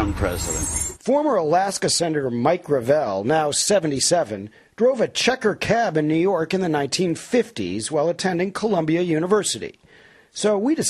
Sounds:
speech

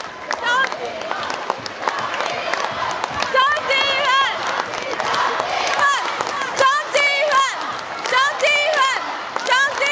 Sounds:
speech

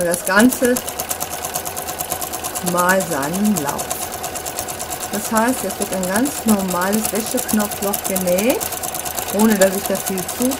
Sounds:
using sewing machines

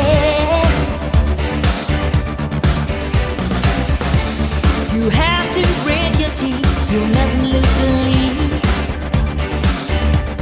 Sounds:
exciting music
music

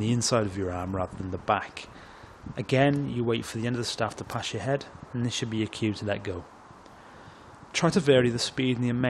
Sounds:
speech

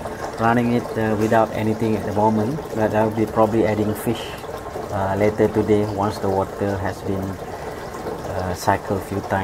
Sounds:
water
speech

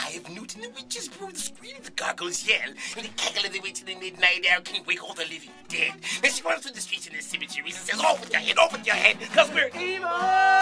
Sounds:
music
speech

